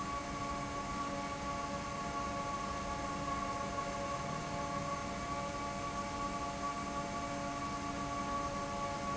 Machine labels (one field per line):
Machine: fan